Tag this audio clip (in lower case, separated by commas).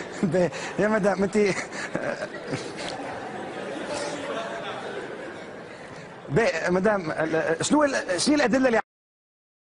speech